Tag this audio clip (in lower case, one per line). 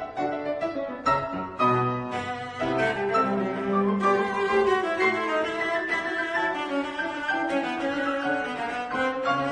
bowed string instrument
music